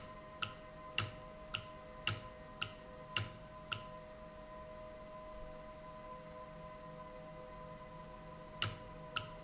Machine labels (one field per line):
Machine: valve